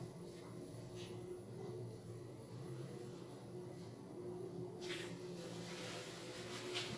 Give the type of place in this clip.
elevator